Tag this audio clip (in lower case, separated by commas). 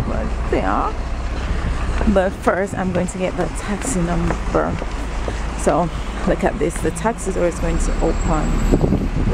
outside, urban or man-made, speech